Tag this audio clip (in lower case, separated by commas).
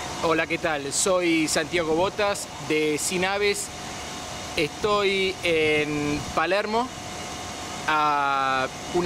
speech, outside, urban or man-made